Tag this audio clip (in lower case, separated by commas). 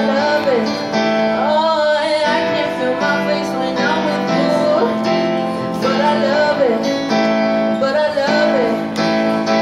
female singing, music